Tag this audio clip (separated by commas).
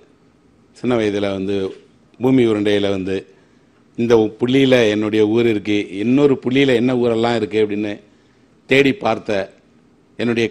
Speech, Narration, Male speech